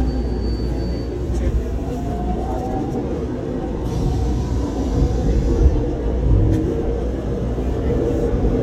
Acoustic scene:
subway train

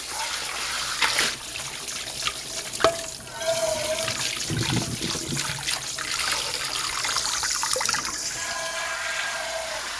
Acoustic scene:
kitchen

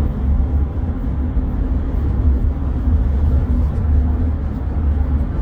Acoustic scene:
car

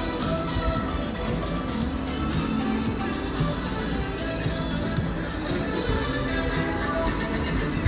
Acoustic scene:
street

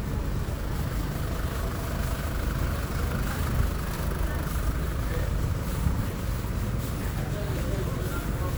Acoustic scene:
residential area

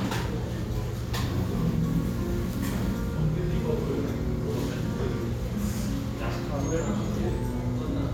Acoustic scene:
restaurant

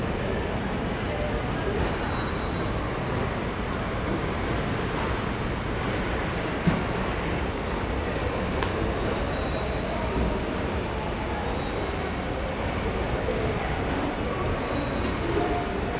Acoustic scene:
subway station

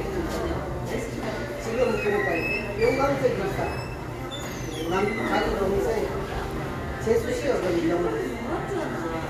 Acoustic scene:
cafe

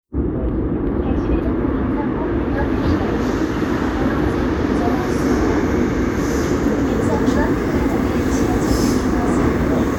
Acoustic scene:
subway train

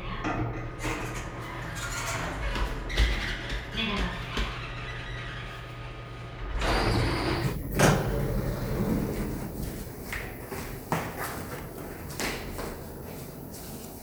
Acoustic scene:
elevator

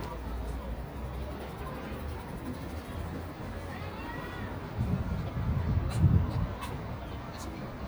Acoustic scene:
residential area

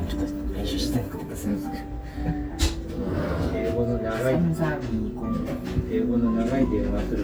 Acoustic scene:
restaurant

